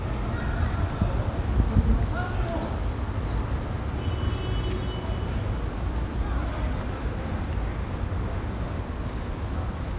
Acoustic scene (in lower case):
residential area